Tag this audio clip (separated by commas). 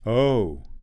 Human voice, Speech, Male speech